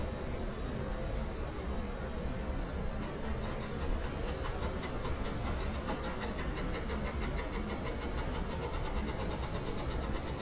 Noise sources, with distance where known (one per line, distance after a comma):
unidentified impact machinery